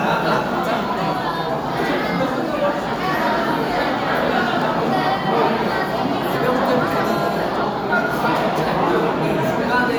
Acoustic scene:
restaurant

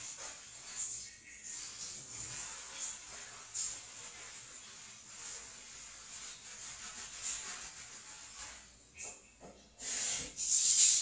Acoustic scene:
restroom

